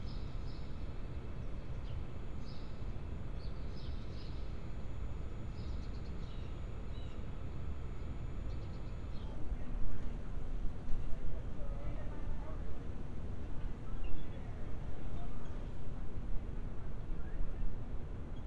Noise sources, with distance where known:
background noise

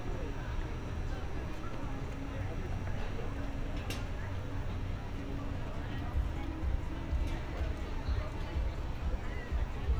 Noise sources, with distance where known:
person or small group talking, far

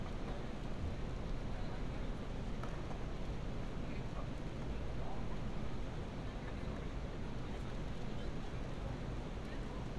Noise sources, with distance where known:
unidentified human voice, far

